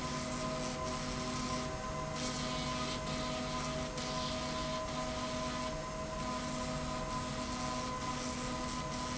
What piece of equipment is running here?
slide rail